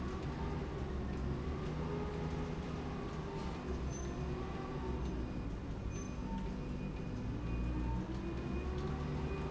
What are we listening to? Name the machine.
slide rail